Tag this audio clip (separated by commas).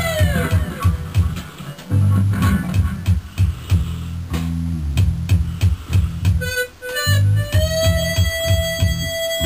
Bass guitar, Music, Plucked string instrument, Guitar, Musical instrument